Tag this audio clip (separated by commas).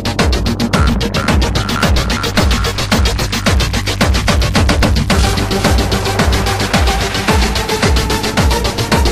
Techno, Music, Electronic music